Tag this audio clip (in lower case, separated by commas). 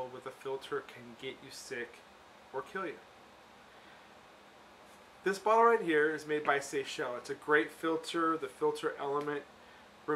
speech